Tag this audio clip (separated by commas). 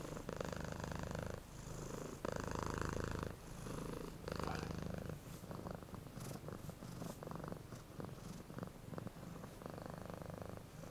cat purring